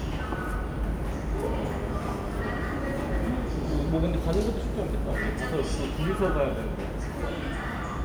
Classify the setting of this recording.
subway station